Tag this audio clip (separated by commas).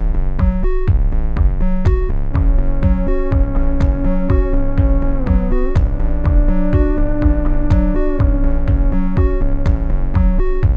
playing theremin